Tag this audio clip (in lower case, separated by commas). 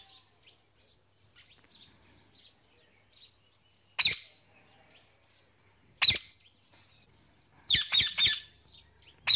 tweeting